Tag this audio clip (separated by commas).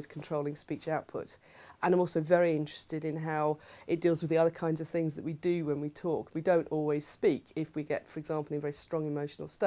Speech